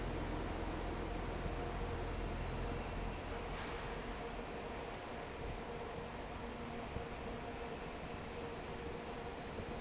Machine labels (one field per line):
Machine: fan